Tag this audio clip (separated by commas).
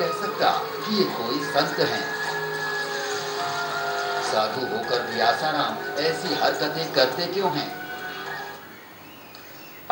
Music, Speech